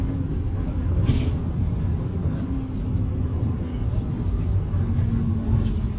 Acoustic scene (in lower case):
bus